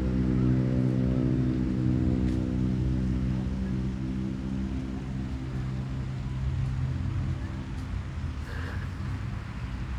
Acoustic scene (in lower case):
residential area